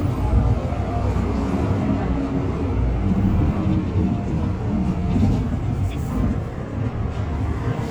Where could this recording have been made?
on a bus